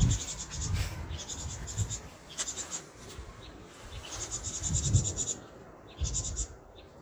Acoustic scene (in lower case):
park